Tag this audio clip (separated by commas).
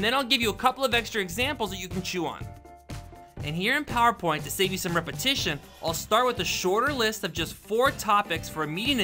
Music, Speech